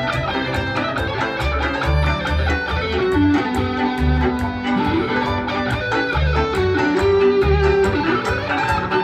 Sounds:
pizzicato
fiddle
bowed string instrument

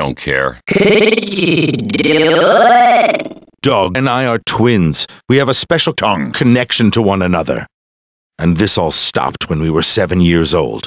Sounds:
speech

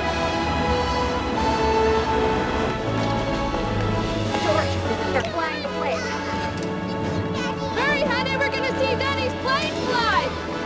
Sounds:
music
speech

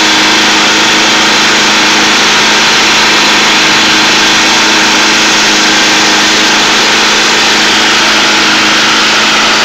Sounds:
light engine (high frequency)

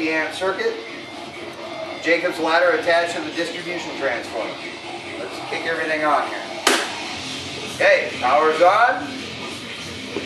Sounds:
speech

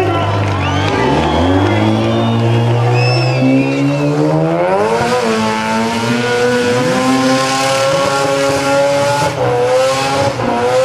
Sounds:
race car
vehicle
tire squeal
car
speech

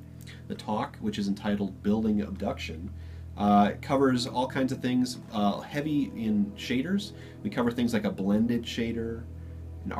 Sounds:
speech

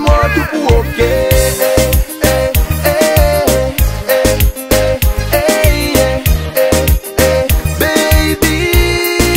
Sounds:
music
tender music

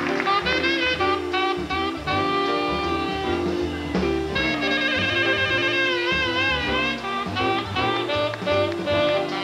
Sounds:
playing saxophone

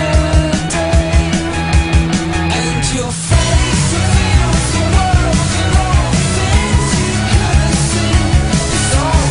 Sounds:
music

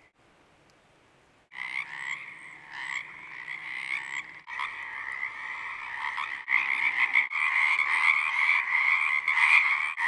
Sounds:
frog croaking

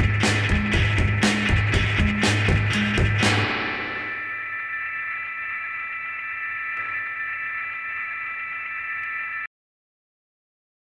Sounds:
music

